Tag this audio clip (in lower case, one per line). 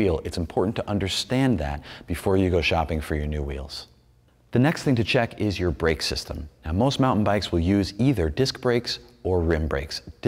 speech